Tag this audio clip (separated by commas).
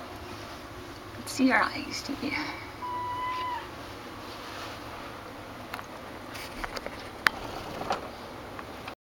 Speech, Animal